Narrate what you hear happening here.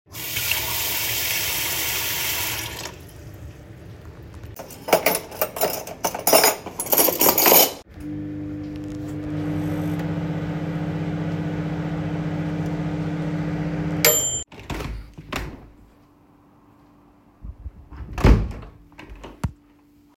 In the kitchen, turned the tap on, arranged the washed cutlery, microwave on, opened and closed the microwave door after bell rang